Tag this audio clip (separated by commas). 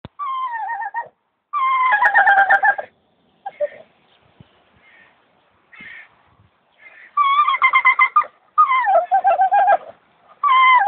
Dog, Animal, pets, outside, rural or natural